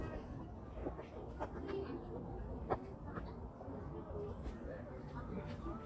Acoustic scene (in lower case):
park